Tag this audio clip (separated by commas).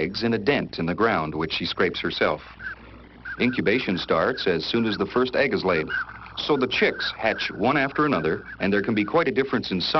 Speech, Bird